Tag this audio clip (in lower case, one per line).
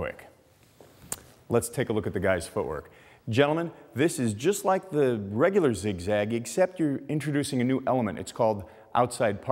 speech